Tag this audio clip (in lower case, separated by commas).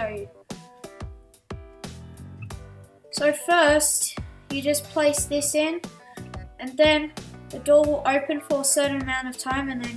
speech, music